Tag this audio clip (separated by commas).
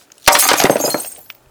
Glass, Shatter